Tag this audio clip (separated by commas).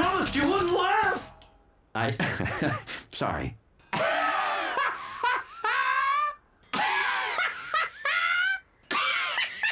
Speech